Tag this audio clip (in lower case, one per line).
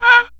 wood